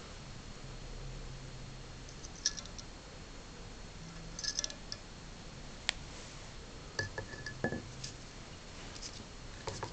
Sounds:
inside a small room

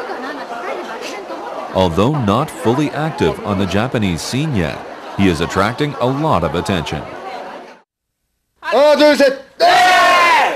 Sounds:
speech

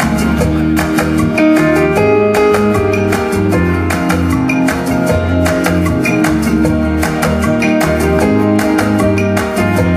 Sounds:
music

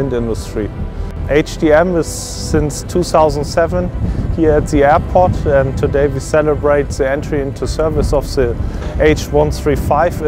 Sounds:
music, speech

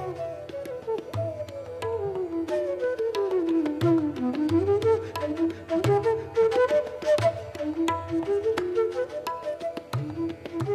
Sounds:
drum, percussion, tabla

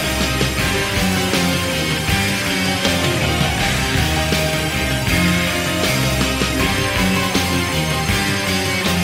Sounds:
music

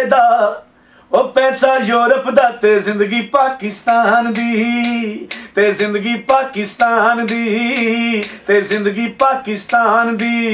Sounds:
male singing

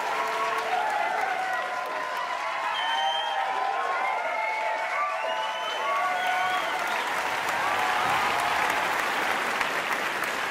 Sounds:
singing choir

